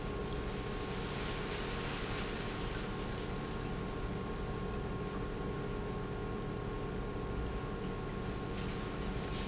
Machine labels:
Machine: pump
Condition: normal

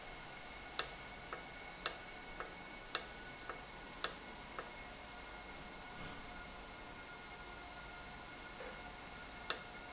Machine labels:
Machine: valve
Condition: normal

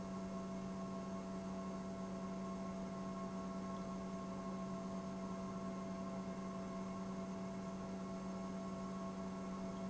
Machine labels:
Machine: pump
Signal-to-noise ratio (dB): 6 dB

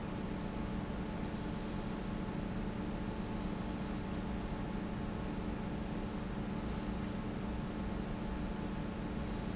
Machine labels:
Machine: pump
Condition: normal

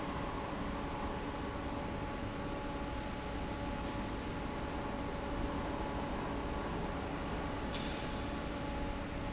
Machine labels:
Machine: fan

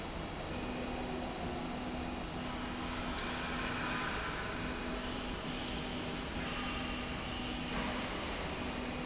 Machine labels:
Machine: slide rail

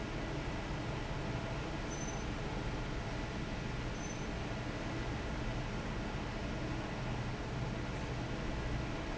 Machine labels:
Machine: fan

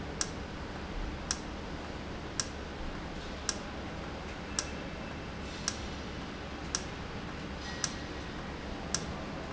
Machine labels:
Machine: valve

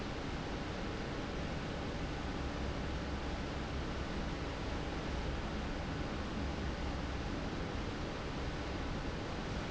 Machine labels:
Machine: fan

